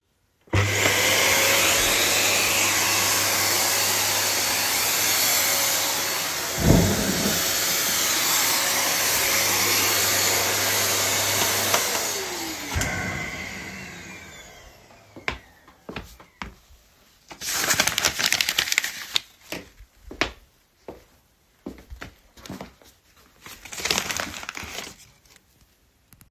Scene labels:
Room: living room; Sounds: vacuum cleaner, footsteps

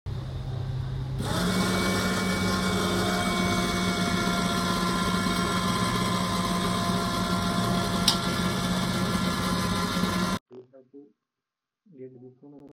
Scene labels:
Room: kitchen; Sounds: coffee machine

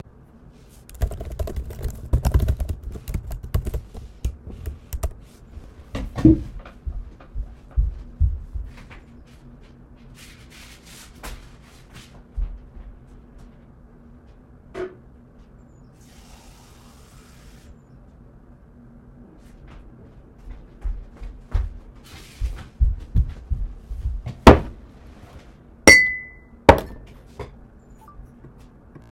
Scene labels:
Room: office; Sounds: keyboard typing, footsteps, running water, cutlery and dishes

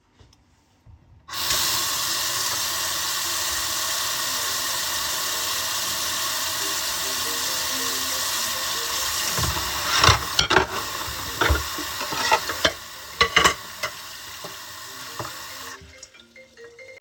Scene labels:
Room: kitchen; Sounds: running water, phone ringing, cutlery and dishes

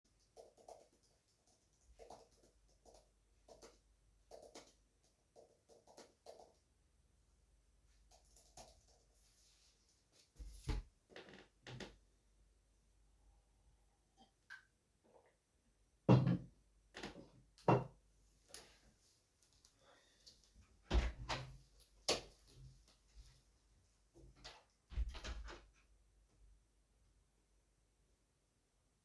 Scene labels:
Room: bedroom; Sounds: keyboard typing, cutlery and dishes, footsteps, door (more than once), light switch

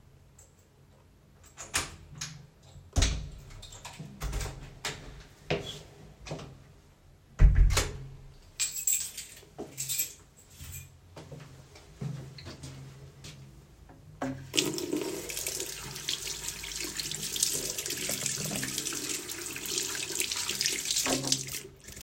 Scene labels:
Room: hallway, bathroom; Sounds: door (more than once), footsteps, keys, running water

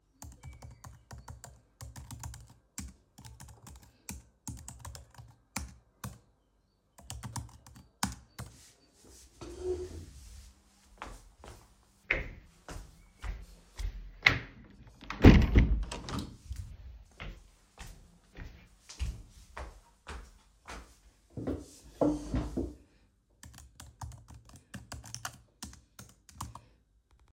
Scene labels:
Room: office; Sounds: keyboard typing, footsteps, window

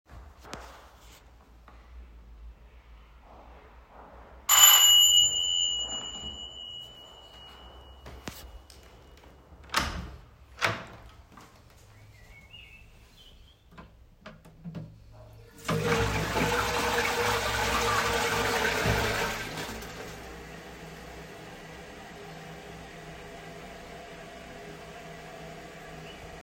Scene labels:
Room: living room, bathroom; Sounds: footsteps, bell ringing, window, door, toilet flushing

